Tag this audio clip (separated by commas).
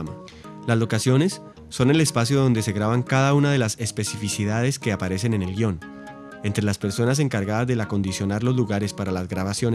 Music, Speech